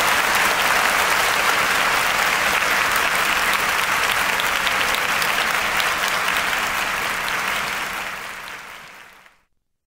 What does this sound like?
Loud sustained applause